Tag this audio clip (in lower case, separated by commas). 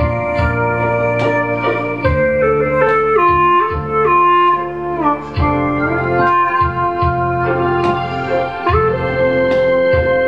clarinet, music